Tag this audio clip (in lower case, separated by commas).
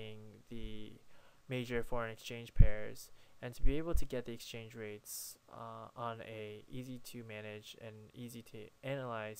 speech